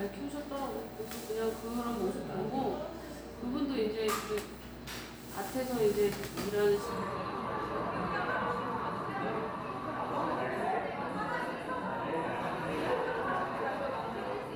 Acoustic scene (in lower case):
cafe